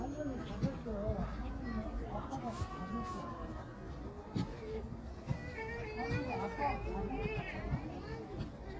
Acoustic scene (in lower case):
park